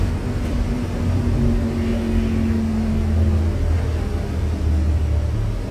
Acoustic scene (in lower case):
bus